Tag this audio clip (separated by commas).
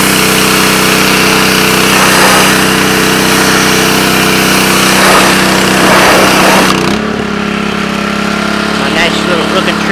Vehicle, Speech